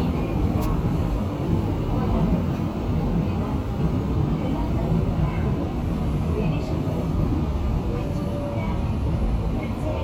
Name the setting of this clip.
subway train